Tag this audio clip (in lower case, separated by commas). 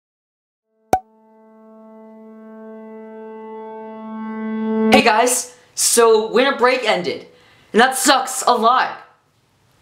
child speech